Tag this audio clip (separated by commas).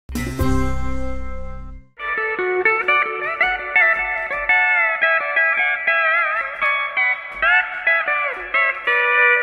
playing steel guitar